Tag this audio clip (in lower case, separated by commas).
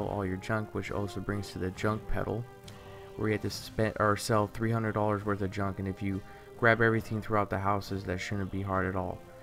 music, speech